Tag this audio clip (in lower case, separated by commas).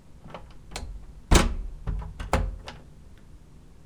domestic sounds, door, slam